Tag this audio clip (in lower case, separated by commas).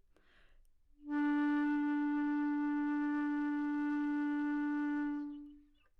woodwind instrument, music, musical instrument